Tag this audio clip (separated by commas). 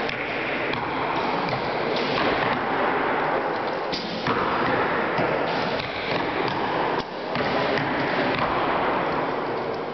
Arrow